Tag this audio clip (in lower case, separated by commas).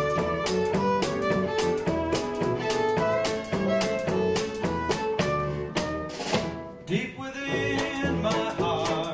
music, fiddle, musical instrument